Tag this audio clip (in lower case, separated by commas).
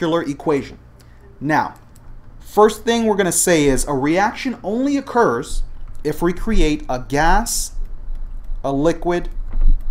speech